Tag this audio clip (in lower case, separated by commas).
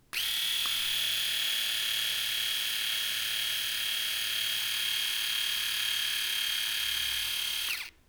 domestic sounds